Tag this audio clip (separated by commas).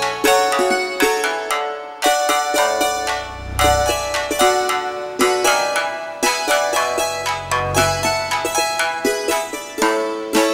Music